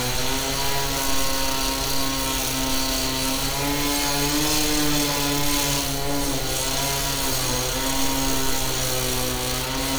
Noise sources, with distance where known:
small-sounding engine, near

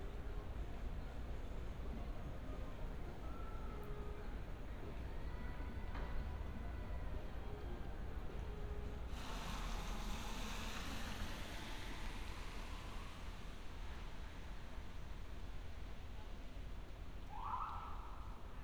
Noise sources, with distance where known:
background noise

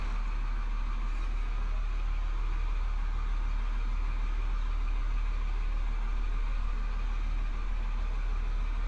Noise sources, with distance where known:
large-sounding engine, near

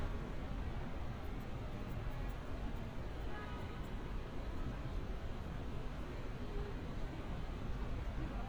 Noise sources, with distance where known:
car horn, far

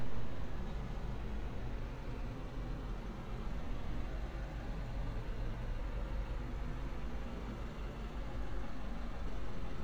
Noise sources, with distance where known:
engine of unclear size

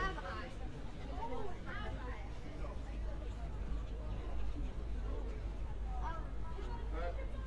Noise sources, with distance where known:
person or small group talking, near

